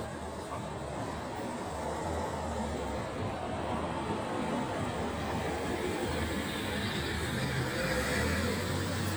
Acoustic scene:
residential area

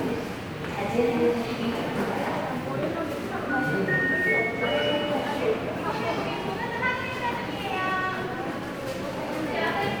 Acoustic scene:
subway station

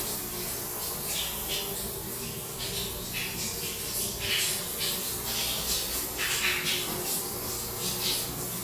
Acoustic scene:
restroom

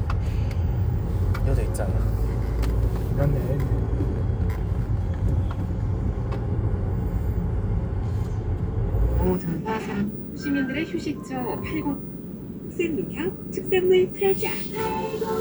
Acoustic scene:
car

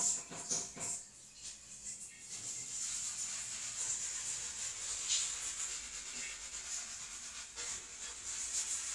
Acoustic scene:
restroom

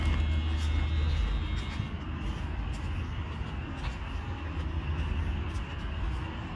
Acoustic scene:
park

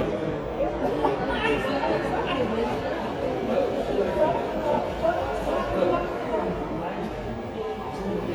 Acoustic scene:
crowded indoor space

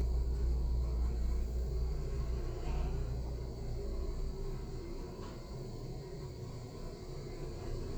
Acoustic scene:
elevator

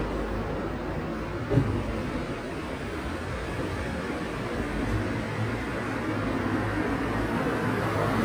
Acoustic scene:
residential area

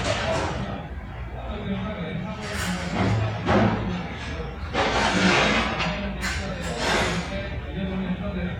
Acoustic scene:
restaurant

